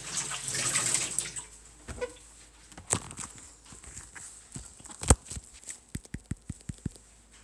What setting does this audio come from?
kitchen